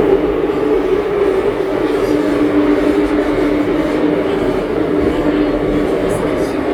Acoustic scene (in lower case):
subway train